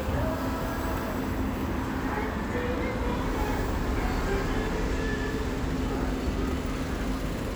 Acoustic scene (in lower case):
street